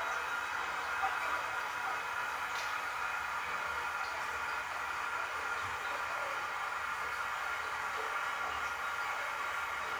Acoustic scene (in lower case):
restroom